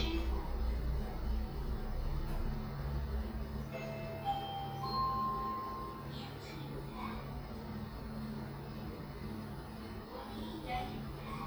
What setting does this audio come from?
elevator